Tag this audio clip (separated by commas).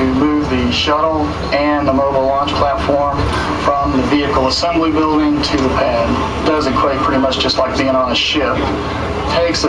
Speech